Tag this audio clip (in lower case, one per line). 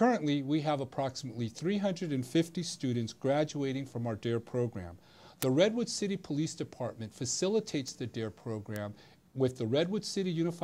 speech
man speaking